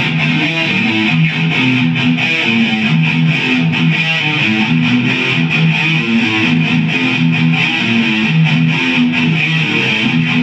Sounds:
Guitar, Music, Electric guitar, Musical instrument

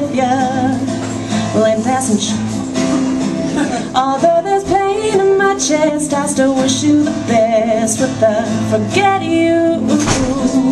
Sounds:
Music, Female singing

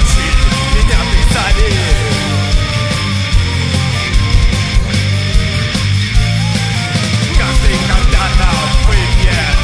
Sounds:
Music, Rock music

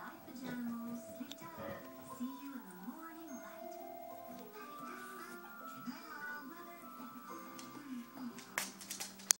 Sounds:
Speech, Music

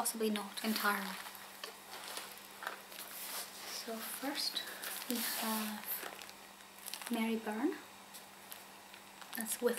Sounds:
Speech

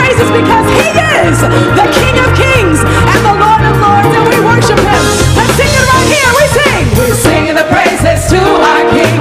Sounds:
Speech, Choir, Female singing, Music

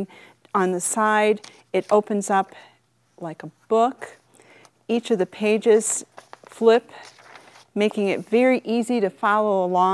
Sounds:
Speech

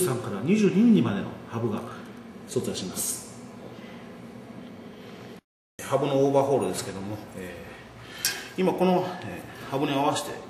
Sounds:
Speech

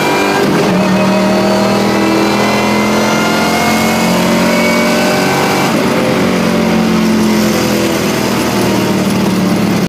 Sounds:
Car, Vehicle

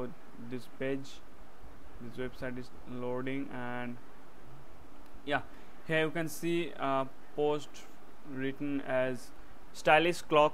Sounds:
Speech

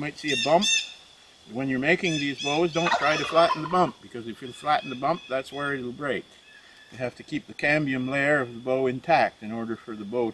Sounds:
Speech

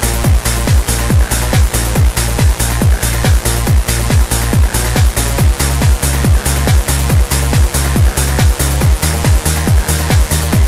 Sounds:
Trance music, Music

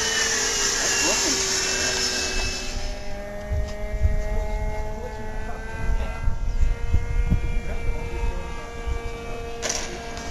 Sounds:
Speech

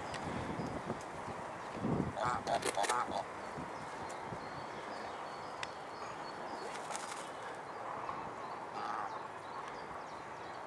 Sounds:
Bird

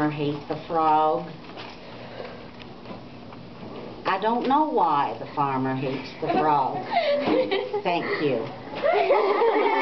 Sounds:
Speech

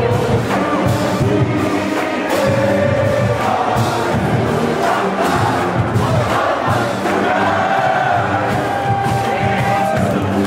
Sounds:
Crowd

